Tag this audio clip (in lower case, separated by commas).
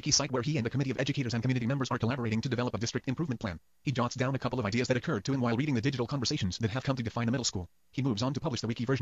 speech, speech synthesizer